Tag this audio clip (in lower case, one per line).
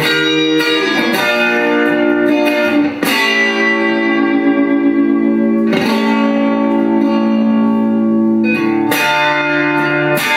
plucked string instrument
musical instrument
music
strum
guitar
electric guitar